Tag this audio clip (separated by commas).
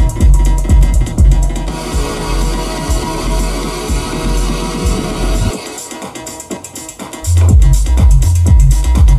Music, Electronic music